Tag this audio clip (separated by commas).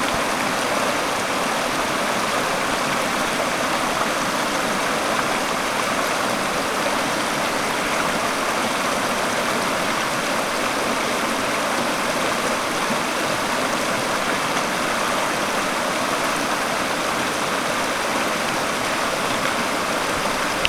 Water, Stream